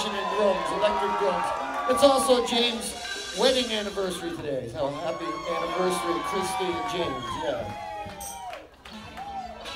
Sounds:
Music, Speech

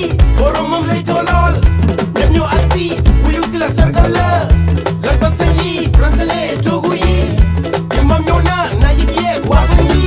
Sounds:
Music

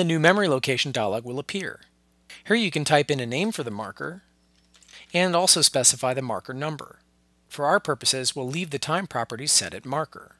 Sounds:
Speech

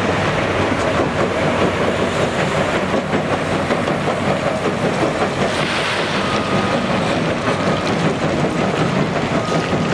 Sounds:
Truck, Vehicle, outside, urban or man-made

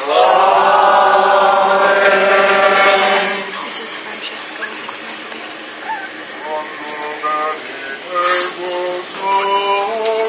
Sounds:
Chant

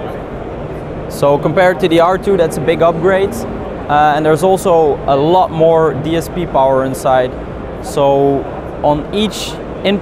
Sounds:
Speech

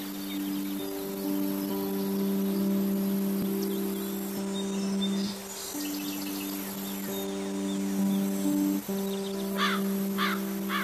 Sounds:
bovinae cowbell

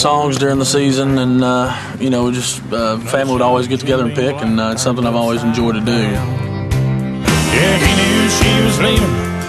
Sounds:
Bluegrass, Music, Speech

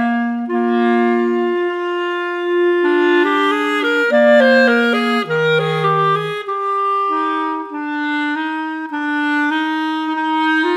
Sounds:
French horn, Music

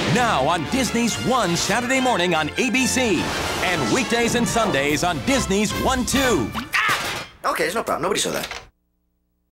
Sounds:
Music, Speech

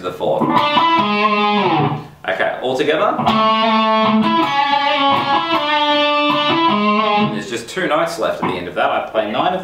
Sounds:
Guitar, Musical instrument, Plucked string instrument

